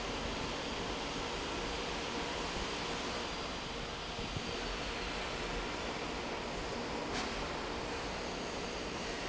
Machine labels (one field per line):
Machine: fan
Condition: normal